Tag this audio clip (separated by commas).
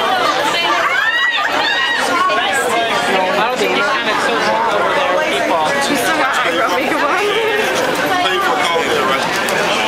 Speech